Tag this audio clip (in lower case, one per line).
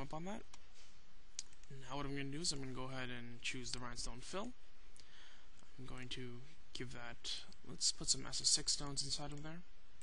speech